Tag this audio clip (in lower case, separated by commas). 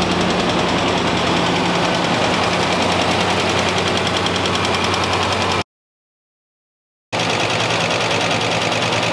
car engine knocking